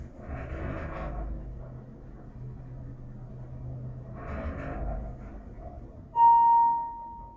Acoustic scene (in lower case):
elevator